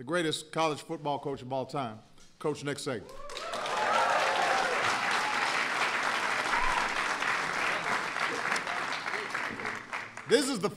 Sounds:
applause, speech

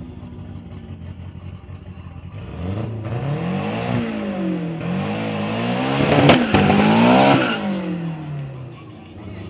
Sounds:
vehicle, car, vroom

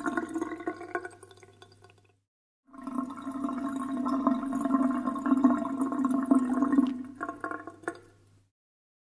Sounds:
water

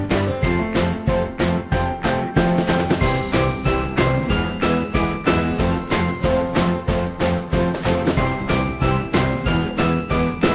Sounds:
music

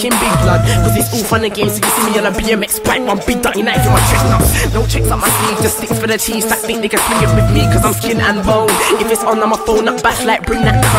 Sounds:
music

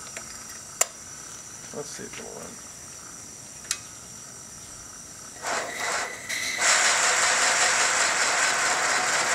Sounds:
speech, train, steam

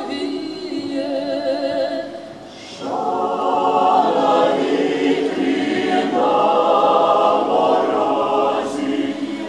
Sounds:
music, chant

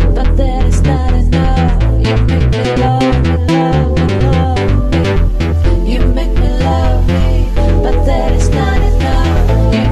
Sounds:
sampler, music

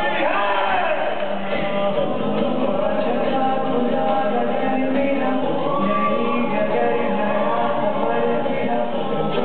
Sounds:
male singing, music, choir

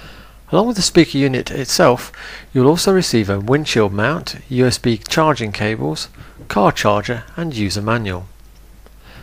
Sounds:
speech

